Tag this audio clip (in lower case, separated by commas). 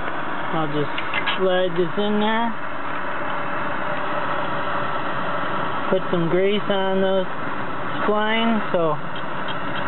vehicle, idling